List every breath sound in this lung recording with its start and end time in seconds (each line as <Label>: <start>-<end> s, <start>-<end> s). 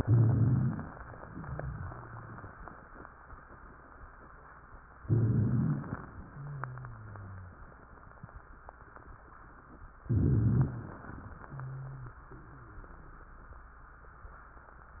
Inhalation: 0.00-0.93 s, 5.04-6.01 s, 10.10-10.93 s
Exhalation: 1.25-2.50 s, 6.25-7.62 s, 11.35-13.30 s
Rhonchi: 0.00-0.93 s, 1.25-2.50 s, 5.04-6.01 s, 6.25-7.62 s, 10.10-10.93 s